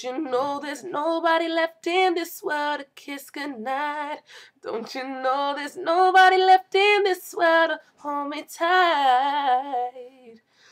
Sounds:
Female singing

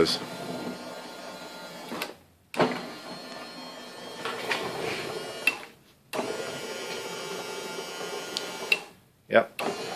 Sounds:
Speech

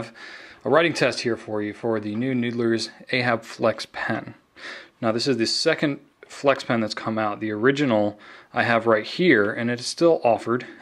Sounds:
Speech

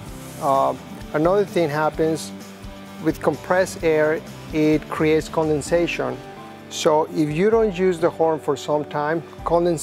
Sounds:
Music, Speech

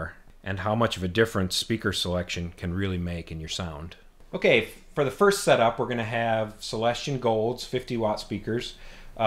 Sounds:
Speech

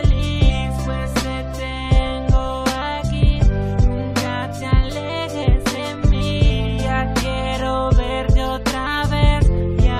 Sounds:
Music

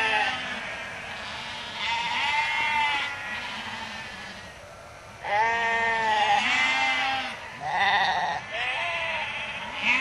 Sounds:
sheep bleating, Animal, Sheep, Goat, Bleat

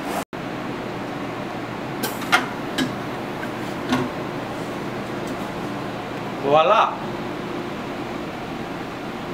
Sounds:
Speech, Printer

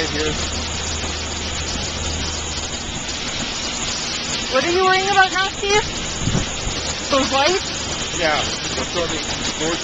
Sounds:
Speech

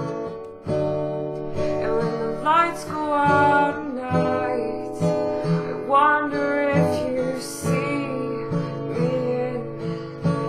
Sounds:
Acoustic guitar, Singing, Music

